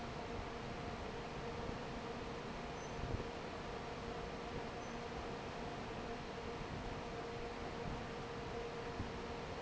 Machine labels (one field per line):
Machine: fan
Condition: normal